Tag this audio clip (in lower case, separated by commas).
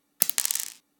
domestic sounds, coin (dropping)